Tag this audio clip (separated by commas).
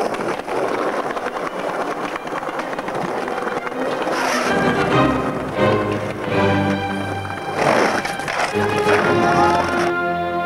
Skateboard, Music, skateboarding